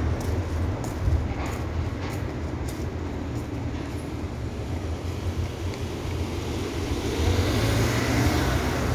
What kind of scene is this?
residential area